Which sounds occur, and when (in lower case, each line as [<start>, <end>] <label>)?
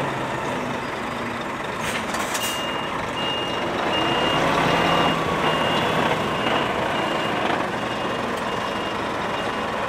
[0.00, 9.85] truck
[0.79, 1.35] tire squeal
[1.79, 2.57] air brake
[2.32, 2.83] reversing beeps
[3.10, 3.62] reversing beeps
[3.83, 5.03] revving
[3.89, 4.41] reversing beeps
[4.65, 5.14] reversing beeps
[5.45, 5.85] reversing beeps
[6.18, 6.65] reversing beeps
[6.94, 7.31] reversing beeps
[7.73, 8.14] reversing beeps
[8.48, 8.90] reversing beeps
[9.25, 9.62] reversing beeps